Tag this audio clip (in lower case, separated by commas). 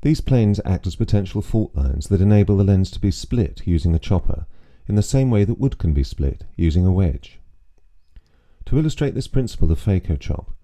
speech